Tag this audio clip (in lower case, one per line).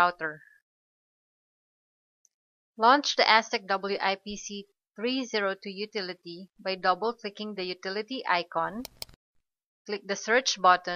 speech